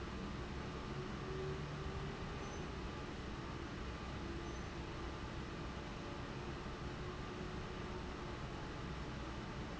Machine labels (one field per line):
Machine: fan